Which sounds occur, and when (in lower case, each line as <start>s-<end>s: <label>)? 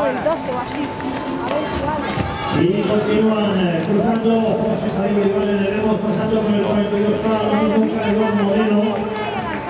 0.0s-0.8s: woman speaking
0.0s-2.6s: music
0.0s-9.6s: background noise
0.0s-9.6s: run
1.4s-2.2s: woman speaking
1.4s-4.0s: speech babble
2.4s-9.0s: male speech
3.8s-3.9s: tick
4.1s-4.2s: tick
7.2s-9.6s: woman speaking
7.8s-9.6s: clapping